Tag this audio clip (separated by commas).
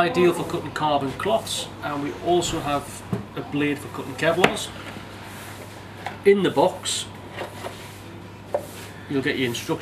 Speech